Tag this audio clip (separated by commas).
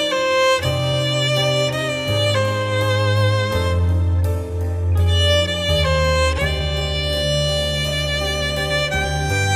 Music